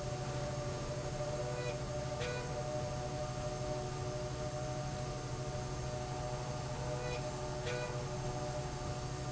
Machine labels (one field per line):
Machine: slide rail